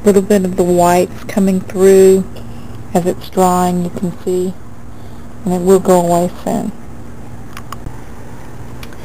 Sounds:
speech
inside a large room or hall

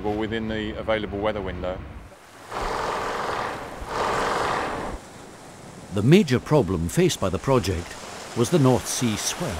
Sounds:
stream

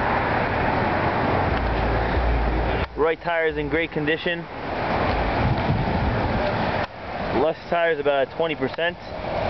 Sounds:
speech

